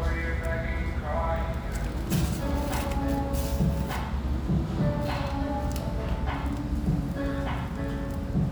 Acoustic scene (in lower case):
restaurant